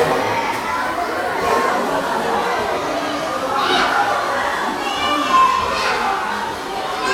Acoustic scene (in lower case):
crowded indoor space